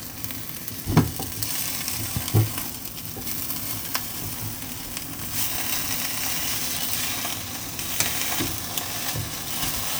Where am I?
in a kitchen